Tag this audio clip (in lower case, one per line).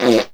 fart